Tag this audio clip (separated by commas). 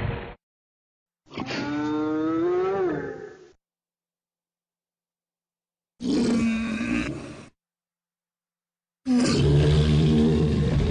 Roar, Sound effect, Animal